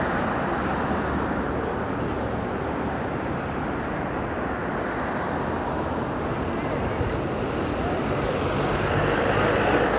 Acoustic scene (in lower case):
residential area